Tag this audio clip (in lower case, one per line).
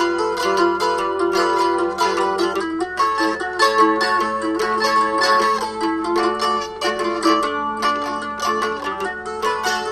music